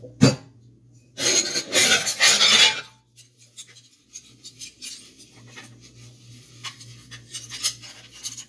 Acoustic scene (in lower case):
kitchen